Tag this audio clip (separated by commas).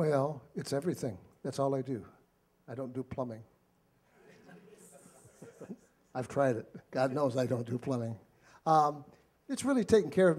Speech